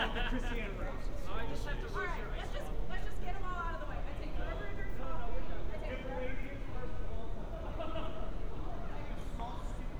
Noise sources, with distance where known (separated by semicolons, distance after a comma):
person or small group talking, near